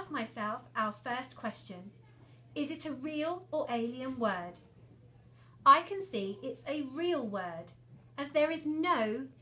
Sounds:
Speech

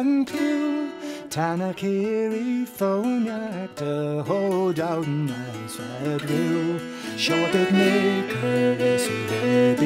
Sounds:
Music

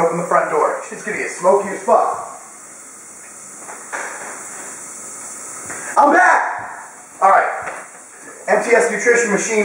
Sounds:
Steam, Hiss

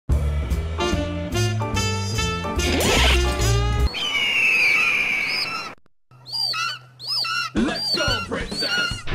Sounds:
Speech, Music

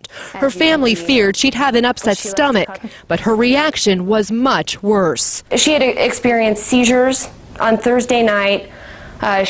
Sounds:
Speech

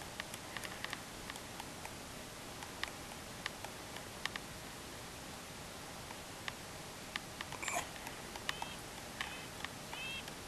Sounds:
woodpecker pecking tree

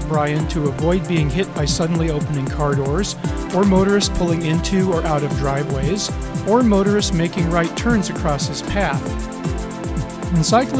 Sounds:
Music, Speech

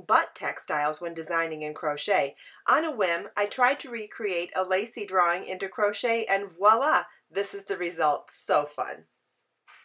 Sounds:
Speech

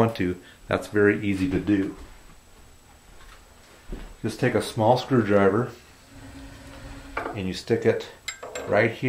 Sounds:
Speech, inside a small room

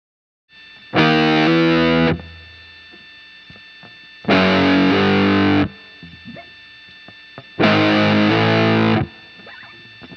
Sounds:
Musical instrument, Electric guitar, Plucked string instrument, Guitar, Music

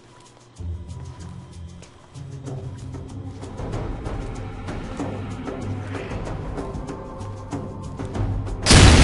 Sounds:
Music, Boom

